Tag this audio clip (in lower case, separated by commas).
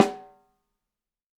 musical instrument, snare drum, percussion, drum, music